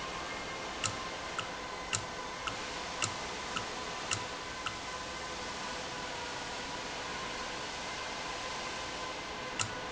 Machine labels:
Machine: valve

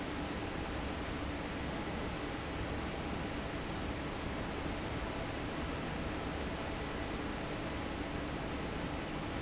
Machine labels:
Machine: fan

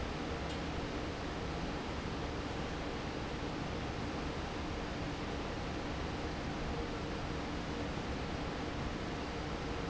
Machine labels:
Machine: fan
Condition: normal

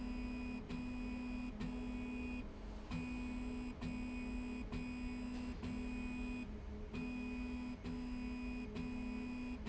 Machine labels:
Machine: slide rail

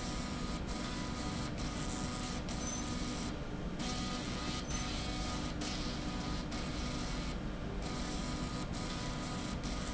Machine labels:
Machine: slide rail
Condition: abnormal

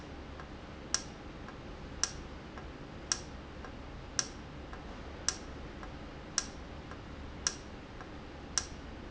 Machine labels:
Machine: valve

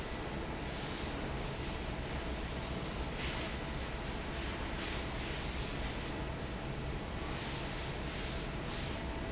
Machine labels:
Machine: fan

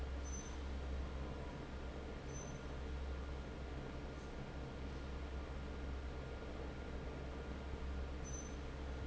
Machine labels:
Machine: fan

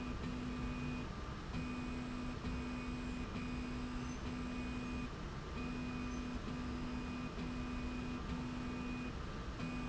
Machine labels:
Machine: slide rail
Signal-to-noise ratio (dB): 0 dB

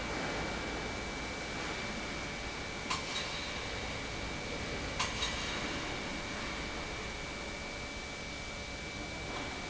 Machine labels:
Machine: pump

